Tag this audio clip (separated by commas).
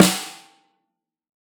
Music, Snare drum, Musical instrument, Percussion, Drum